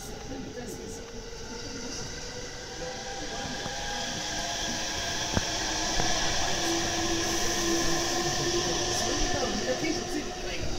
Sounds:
Vehicle, Speech, Train

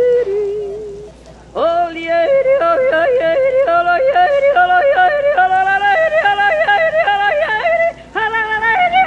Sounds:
Male singing

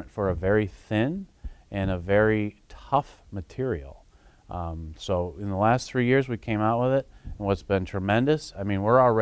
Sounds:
Speech

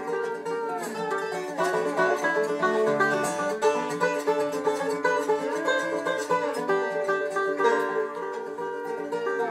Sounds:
Banjo, Music, Country, Bluegrass

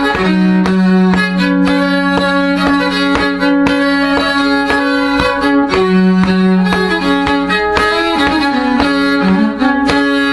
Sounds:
fiddle, Music, Musical instrument

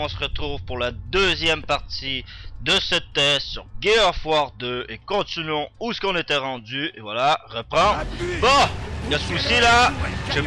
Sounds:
Speech

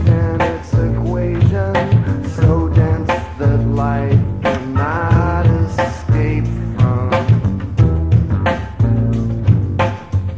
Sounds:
Music

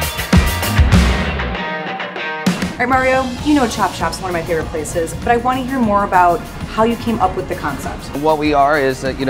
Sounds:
Speech, Music

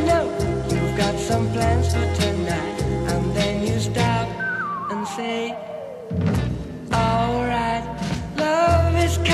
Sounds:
Music

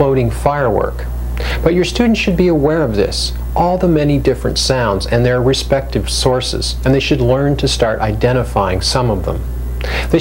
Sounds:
Speech

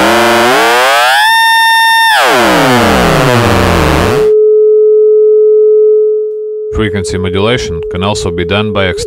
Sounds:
Speech, Synthesizer

